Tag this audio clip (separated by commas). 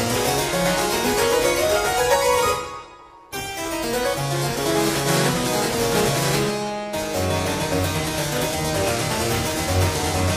Music, Harpsichord